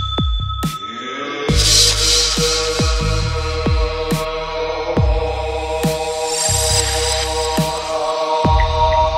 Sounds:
Mantra, Music

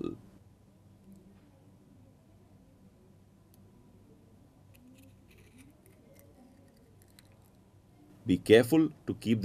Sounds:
inside a small room, Speech

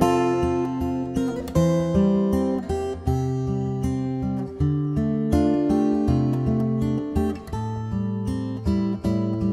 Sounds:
Plucked string instrument, Strum, Musical instrument, Guitar, Acoustic guitar, Music

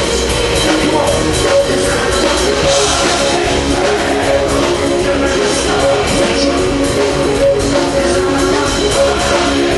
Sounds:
Music

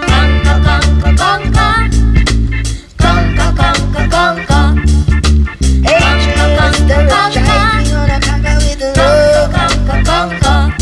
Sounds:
Soul music, Music, Ska, Funk

